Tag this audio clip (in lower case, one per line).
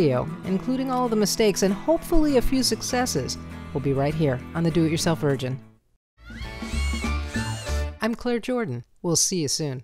speech
music